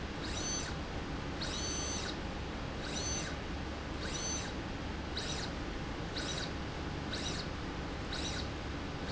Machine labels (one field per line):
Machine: slide rail